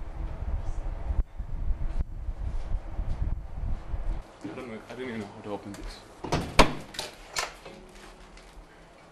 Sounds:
speech

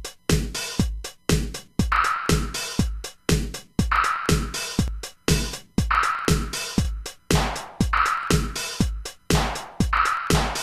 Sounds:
sampler, music, drum machine

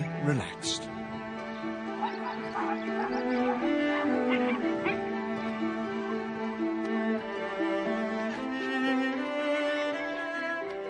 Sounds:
fiddle, bowed string instrument

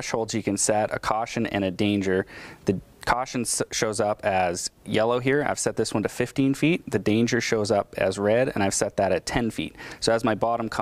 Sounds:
speech

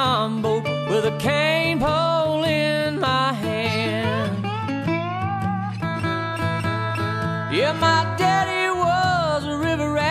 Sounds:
music, blues

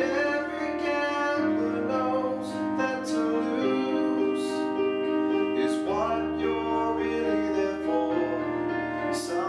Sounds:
music

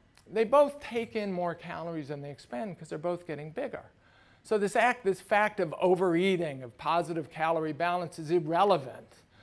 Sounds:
speech

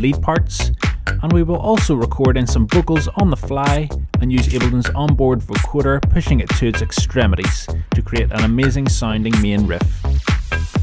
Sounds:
speech, music

